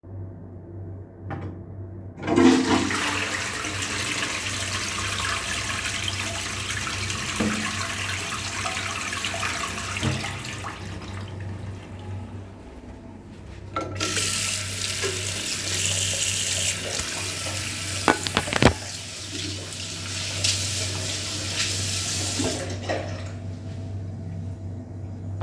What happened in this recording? I went to the bathroom, used the toilet and then flushed it. I then turn on the sink to wash my hands.